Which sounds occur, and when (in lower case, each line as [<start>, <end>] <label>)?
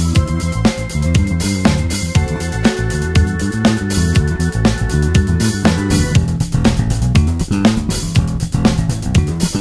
[0.00, 9.60] music